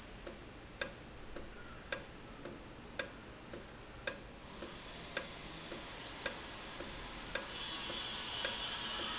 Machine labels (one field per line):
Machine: valve